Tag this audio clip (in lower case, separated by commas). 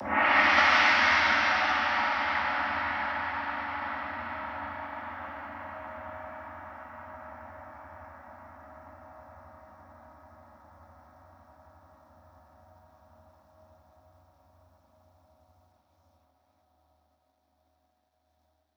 music, musical instrument, gong, percussion